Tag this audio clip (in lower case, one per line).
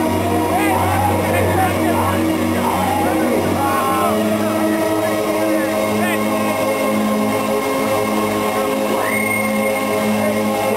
speech
crowd
screaming
music